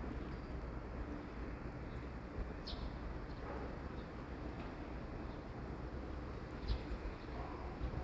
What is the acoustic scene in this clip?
residential area